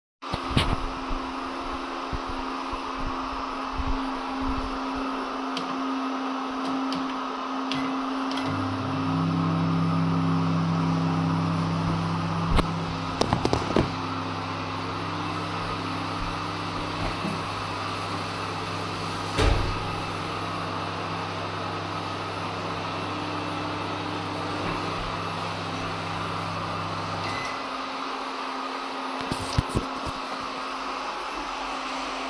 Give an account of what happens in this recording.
I turned on the vacuum cleaner then went to the microwave and then turned on the water